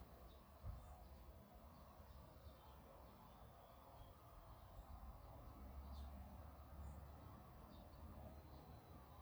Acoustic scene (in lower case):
park